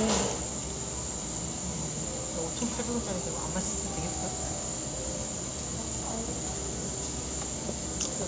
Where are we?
in a cafe